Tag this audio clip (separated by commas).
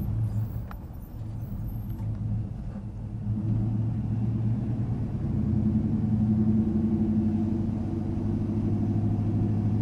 Vehicle, outside, urban or man-made